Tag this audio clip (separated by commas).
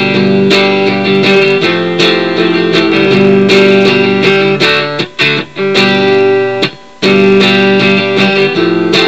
Acoustic guitar, Musical instrument, Guitar, Music, Plucked string instrument